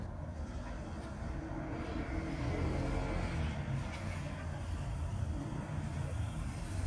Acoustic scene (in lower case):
residential area